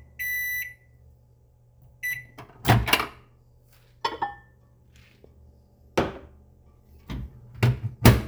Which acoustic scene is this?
kitchen